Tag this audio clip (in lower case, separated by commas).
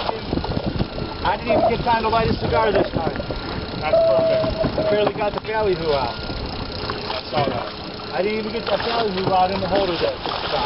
vehicle, speech, water vehicle